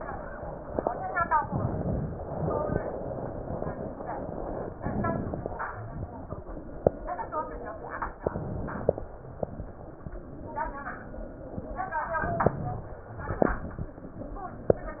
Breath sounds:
Inhalation: 1.47-2.17 s, 4.80-5.58 s, 8.21-9.02 s, 12.19-12.97 s
Exhalation: 2.23-4.72 s, 5.64-8.14 s, 9.10-12.16 s, 13.09-15.00 s

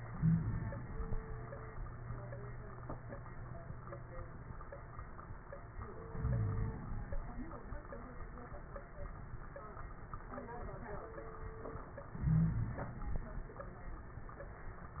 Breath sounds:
Inhalation: 0.05-1.17 s, 6.08-7.18 s, 12.14-13.19 s
Wheeze: 0.13-0.77 s, 6.19-6.78 s, 12.23-12.86 s

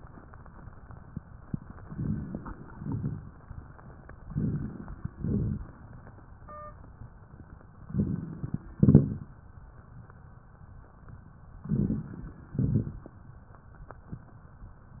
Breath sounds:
Inhalation: 1.84-2.62 s, 4.27-5.05 s, 7.87-8.65 s, 11.61-12.35 s
Exhalation: 2.69-3.47 s, 5.08-5.86 s, 8.80-9.34 s, 12.45-13.19 s
Crackles: 1.84-2.62 s, 2.69-3.47 s, 4.27-5.05 s, 5.08-5.86 s, 7.87-8.65 s, 8.80-9.34 s, 11.61-12.35 s, 12.45-13.19 s

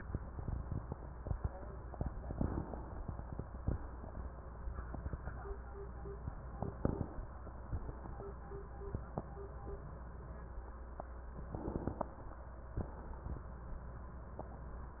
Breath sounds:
Inhalation: 2.35-3.70 s, 6.77-8.19 s, 11.49-12.82 s
Exhalation: 3.70-5.11 s, 8.19-9.67 s, 12.82-14.37 s

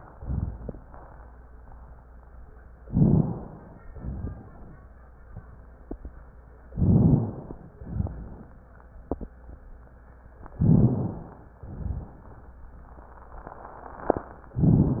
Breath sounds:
Inhalation: 2.86-3.78 s, 6.74-7.69 s, 10.61-11.56 s
Exhalation: 0.09-0.74 s, 3.91-4.75 s, 7.80-8.58 s, 11.65-12.30 s
Rhonchi: 0.09-0.74 s, 3.91-4.75 s, 6.74-7.38 s, 7.80-8.45 s, 10.59-11.23 s, 11.65-12.20 s
Crackles: 2.86-3.47 s

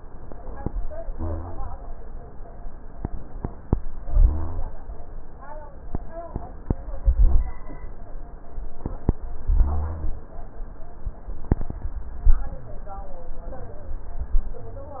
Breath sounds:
Inhalation: 1.08-1.69 s, 4.02-4.63 s, 7.00-7.61 s, 9.53-10.13 s
Rhonchi: 1.08-1.69 s, 4.02-4.63 s, 9.53-10.13 s
Crackles: 7.00-7.61 s

